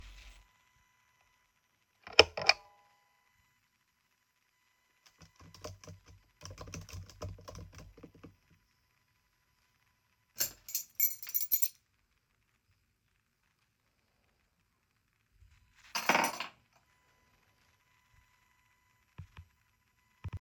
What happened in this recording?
I turned on my table lamp, then I started typing, closed my laptop. I took the keys from the table and put it on the rack.